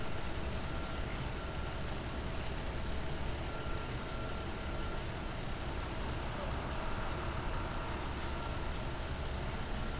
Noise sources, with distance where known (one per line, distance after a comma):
reverse beeper, far